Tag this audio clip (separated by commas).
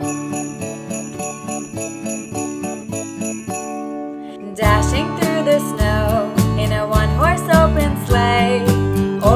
Jingle (music), Music